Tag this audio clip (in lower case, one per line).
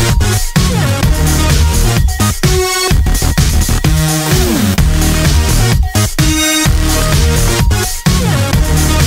music